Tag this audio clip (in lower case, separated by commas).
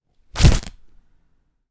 tearing